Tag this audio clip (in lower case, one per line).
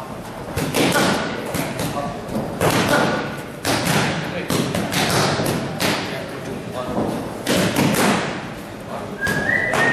thud
speech